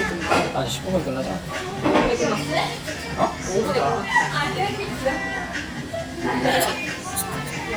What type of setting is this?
restaurant